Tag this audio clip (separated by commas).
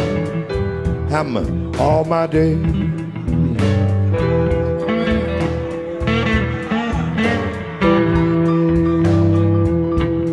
Music, outside, urban or man-made, Speech